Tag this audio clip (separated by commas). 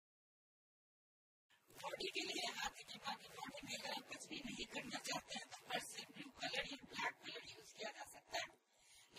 Speech, inside a small room